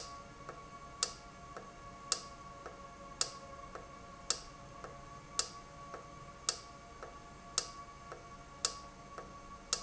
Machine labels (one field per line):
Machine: valve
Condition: normal